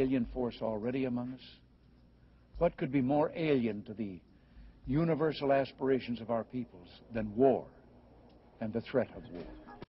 A man gives a speech